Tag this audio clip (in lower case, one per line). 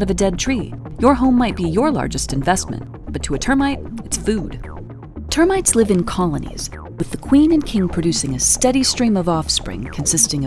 music
speech